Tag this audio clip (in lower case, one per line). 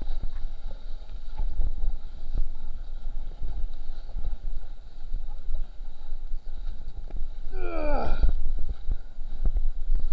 water vehicle
vehicle
sailing ship